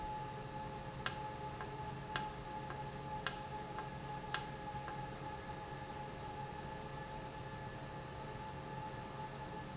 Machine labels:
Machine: valve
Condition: normal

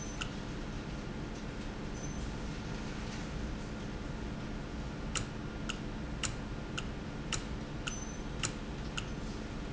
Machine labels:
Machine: valve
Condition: normal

